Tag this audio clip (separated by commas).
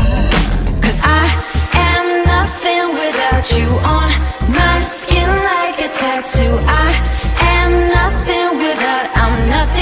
Music